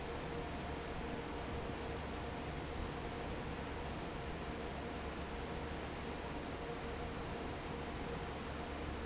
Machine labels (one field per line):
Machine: fan